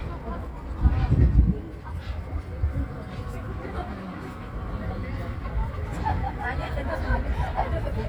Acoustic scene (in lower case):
park